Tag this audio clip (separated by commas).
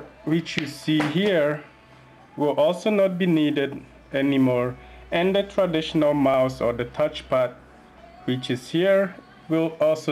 Speech